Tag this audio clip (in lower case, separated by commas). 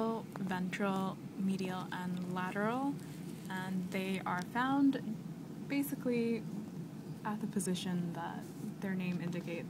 speech